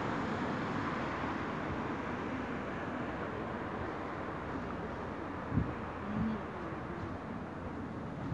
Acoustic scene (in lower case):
street